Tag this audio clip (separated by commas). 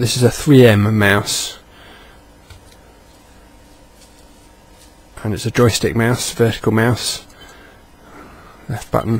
Speech